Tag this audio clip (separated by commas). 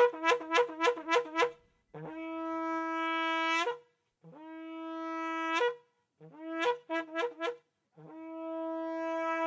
Music